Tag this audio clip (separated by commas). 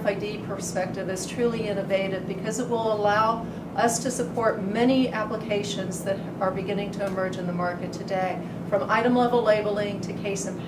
Speech